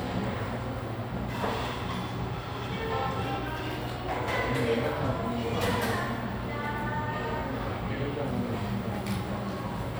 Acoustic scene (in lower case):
cafe